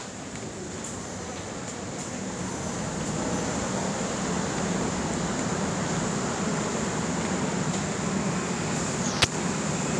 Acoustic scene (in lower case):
subway station